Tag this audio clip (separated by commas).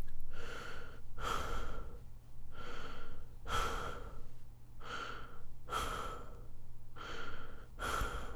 Respiratory sounds, Breathing